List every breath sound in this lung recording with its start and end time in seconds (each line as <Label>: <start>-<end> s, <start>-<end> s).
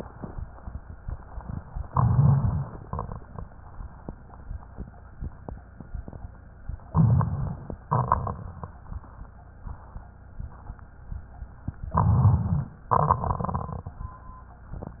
Inhalation: 1.92-2.77 s, 6.91-7.76 s, 11.95-12.76 s
Exhalation: 2.81-3.46 s, 7.94-8.79 s, 12.94-14.03 s
Rhonchi: 1.92-2.74 s, 11.95-12.76 s
Crackles: 2.81-3.46 s, 6.91-7.76 s, 7.94-8.79 s